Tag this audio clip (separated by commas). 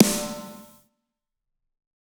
Percussion, Music, Snare drum, Musical instrument, Drum